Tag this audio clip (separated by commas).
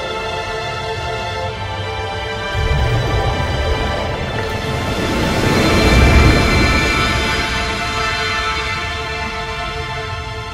Theme music, Music